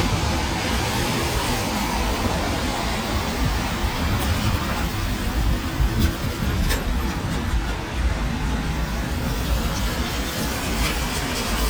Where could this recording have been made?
on a street